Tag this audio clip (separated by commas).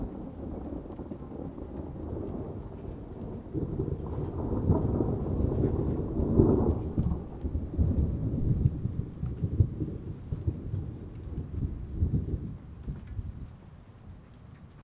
Thunder, Thunderstorm